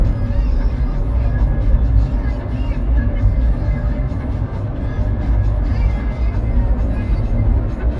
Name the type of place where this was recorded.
car